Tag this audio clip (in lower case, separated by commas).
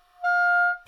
music, musical instrument, wind instrument